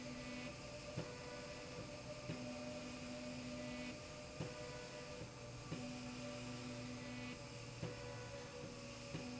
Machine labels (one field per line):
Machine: slide rail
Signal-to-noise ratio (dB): 6 dB